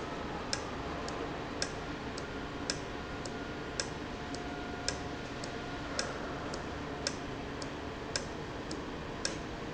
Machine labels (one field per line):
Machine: valve